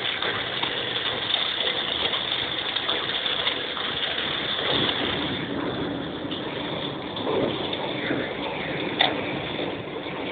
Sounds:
rain
rain on surface

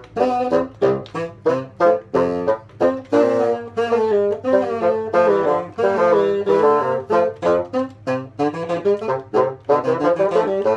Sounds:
playing bassoon

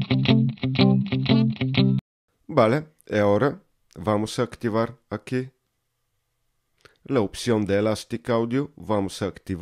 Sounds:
speech
music

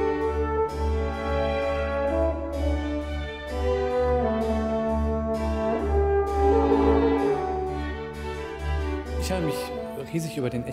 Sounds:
playing french horn

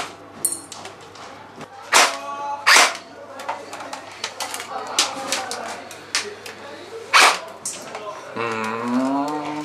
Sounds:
cap gun shooting

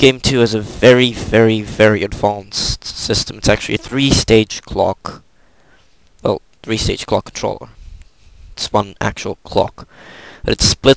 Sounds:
speech

